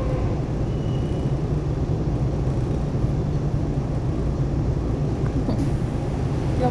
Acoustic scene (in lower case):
subway train